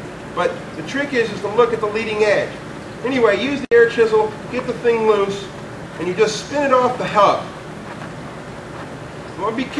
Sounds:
speech

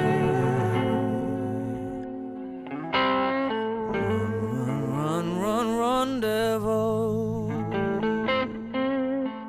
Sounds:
music

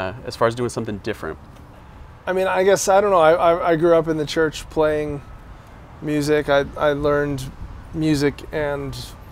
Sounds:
speech

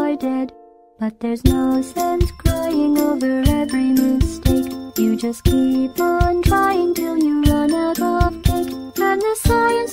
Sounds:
music

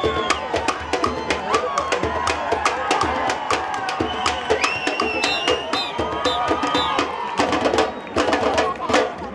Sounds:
crowd, speech, screaming, music, cheering

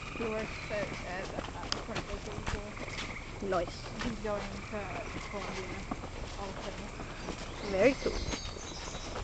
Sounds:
footsteps, speech

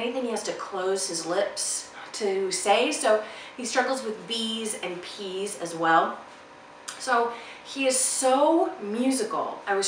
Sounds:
kid speaking

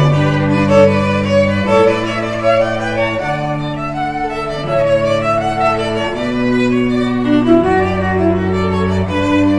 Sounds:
string section, cello, bowed string instrument, musical instrument, fiddle, music

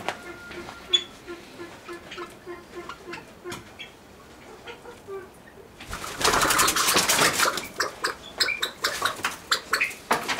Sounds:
pheasant crowing

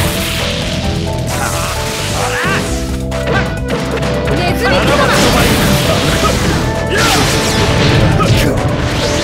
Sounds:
smash, speech, music

